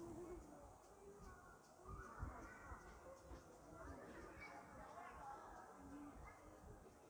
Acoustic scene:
park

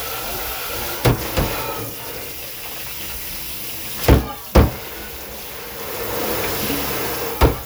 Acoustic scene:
kitchen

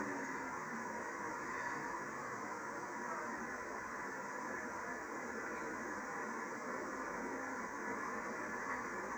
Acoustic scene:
subway train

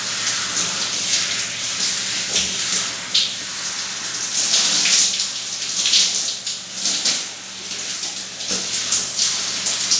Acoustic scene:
restroom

